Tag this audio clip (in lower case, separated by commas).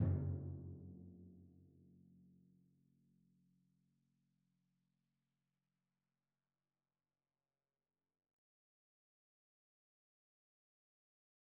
musical instrument, percussion, music, drum